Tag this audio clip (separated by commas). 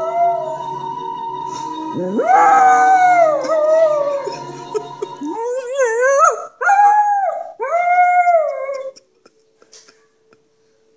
dog howling